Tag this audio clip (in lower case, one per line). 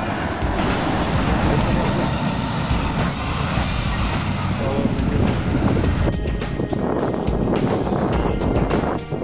vehicle
truck
music